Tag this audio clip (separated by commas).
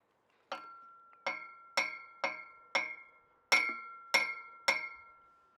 Tools, Hammer